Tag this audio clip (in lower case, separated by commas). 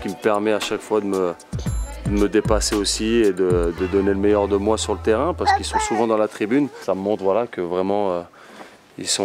music, speech